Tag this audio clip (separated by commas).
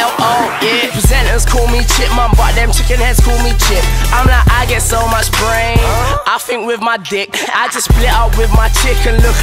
Music